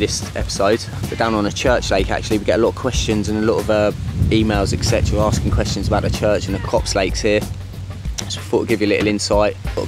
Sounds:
speech, music

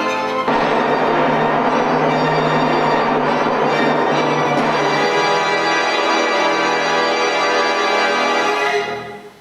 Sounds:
playing timpani

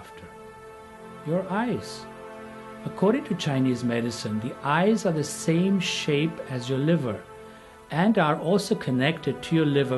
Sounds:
music, speech

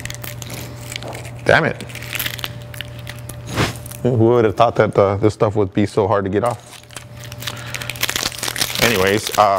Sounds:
speech

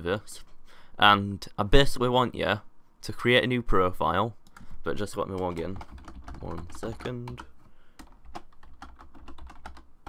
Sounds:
speech, computer keyboard, typing

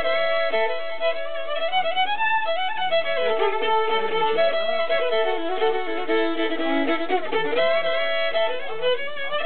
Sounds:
musical instrument, violin, music

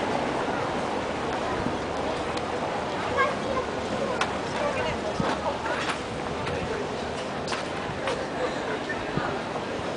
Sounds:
speech, footsteps

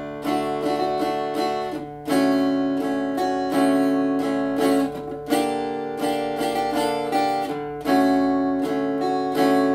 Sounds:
electric guitar, guitar, music, musical instrument

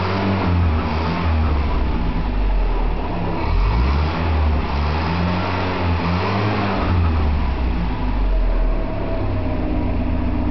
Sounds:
car, engine, vehicle, heavy engine (low frequency)

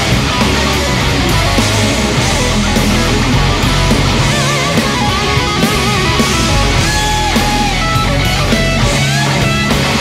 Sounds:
guitar, heavy metal, music, electric guitar, musical instrument, plucked string instrument, rock music

